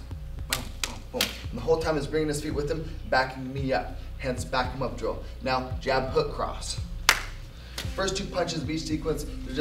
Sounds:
speech

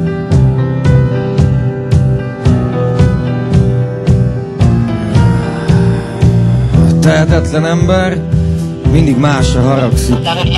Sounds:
music
speech

